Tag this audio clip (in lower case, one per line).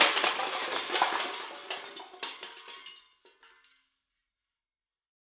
crushing